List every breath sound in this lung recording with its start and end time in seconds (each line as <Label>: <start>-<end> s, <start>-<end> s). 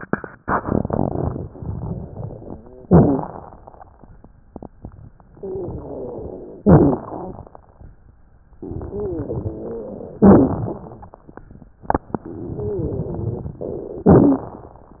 Inhalation: 2.85-3.61 s, 6.62-7.51 s, 10.23-11.12 s, 14.10-14.99 s
Exhalation: 5.37-6.57 s, 8.65-10.17 s, 12.24-14.06 s
Wheeze: 5.37-6.57 s, 8.90-10.17 s, 12.24-14.06 s
Crackles: 2.85-3.61 s, 6.62-7.51 s, 10.23-11.12 s, 14.10-14.99 s